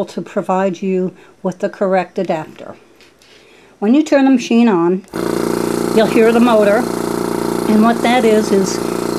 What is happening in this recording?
An adult female is speaking, and a tool motor starts up and vibrates